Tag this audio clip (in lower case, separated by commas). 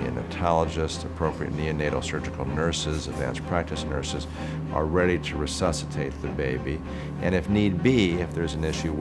music, speech